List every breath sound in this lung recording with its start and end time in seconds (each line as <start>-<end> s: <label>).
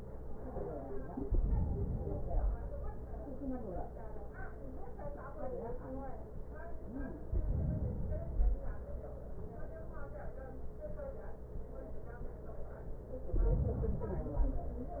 1.08-2.00 s: inhalation
1.97-3.29 s: exhalation
7.26-8.27 s: inhalation
8.28-9.29 s: exhalation
13.29-14.32 s: inhalation
14.29-15.00 s: exhalation